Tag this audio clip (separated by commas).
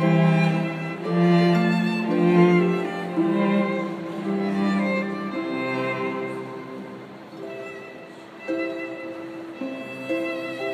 Music, fiddle, Pizzicato, Musical instrument